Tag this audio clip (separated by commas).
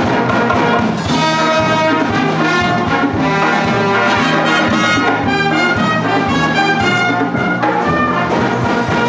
Trumpet, Music, Classical music, Brass instrument, Orchestra, Drum kit